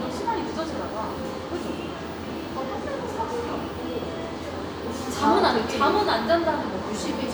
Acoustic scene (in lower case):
crowded indoor space